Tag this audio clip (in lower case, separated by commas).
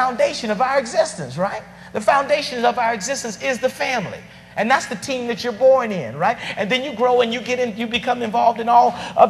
man speaking, narration, speech